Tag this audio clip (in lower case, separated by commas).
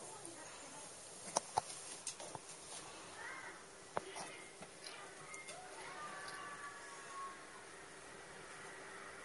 pets, cat, animal, speech